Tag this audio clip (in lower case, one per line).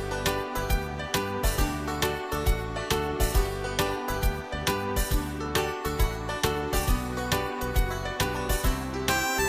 music